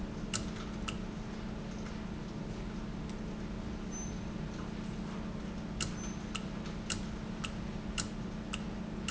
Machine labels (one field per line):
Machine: valve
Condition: normal